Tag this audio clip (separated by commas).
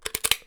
Crushing